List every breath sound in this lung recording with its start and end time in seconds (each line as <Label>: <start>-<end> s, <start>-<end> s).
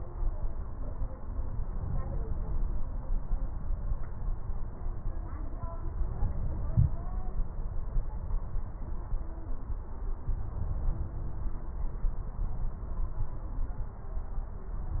Inhalation: 1.68-2.92 s